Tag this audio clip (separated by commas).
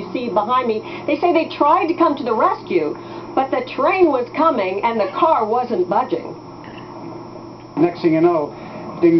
Speech, Vehicle